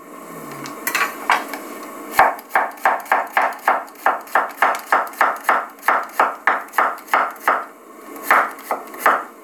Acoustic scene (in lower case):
kitchen